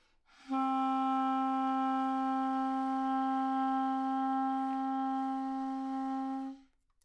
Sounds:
music, musical instrument, wind instrument

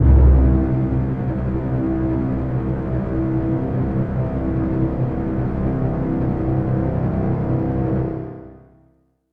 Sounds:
music, musical instrument

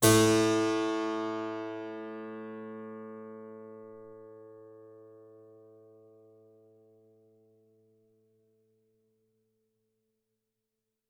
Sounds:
keyboard (musical), musical instrument, music

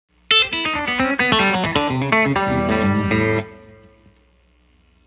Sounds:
music, plucked string instrument, guitar, musical instrument

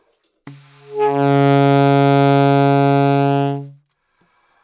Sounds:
music, wind instrument, musical instrument

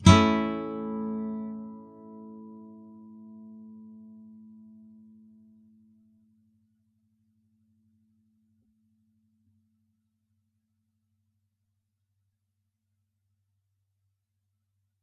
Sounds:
plucked string instrument, music, guitar, musical instrument

